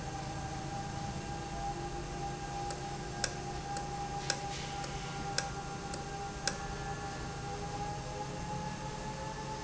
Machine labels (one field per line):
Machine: valve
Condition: normal